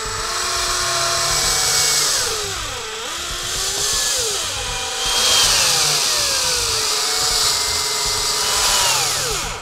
Continuous drilling and buzzing